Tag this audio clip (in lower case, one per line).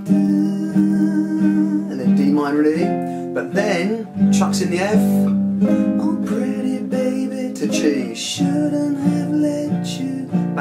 guitar
strum
music
musical instrument
singing
plucked string instrument
speech